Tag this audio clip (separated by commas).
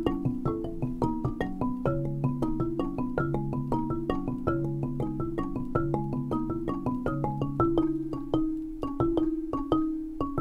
Percussion, Music